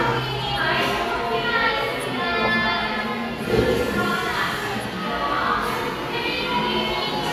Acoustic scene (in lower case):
cafe